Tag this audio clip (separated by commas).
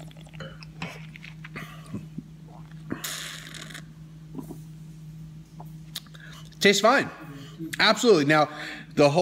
Speech, inside a small room